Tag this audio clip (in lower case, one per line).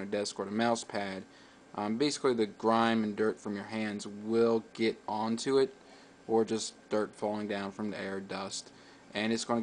speech